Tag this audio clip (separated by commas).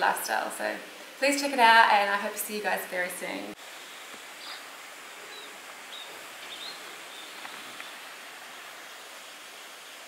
Speech, inside a small room, outside, rural or natural